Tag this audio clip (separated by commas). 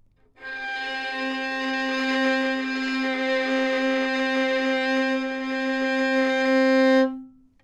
Bowed string instrument, Musical instrument, Music